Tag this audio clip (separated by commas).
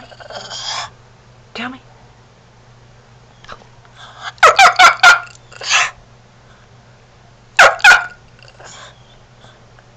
Dog, Bark, Animal, Speech, pets